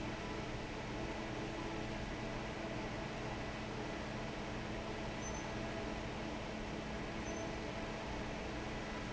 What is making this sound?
fan